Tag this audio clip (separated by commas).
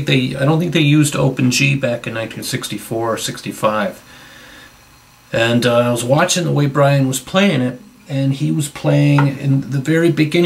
Speech